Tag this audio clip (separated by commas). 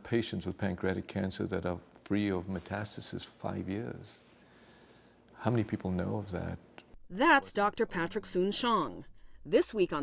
Speech